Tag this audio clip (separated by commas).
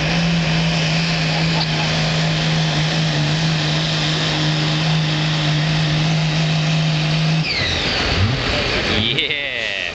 Vehicle, Truck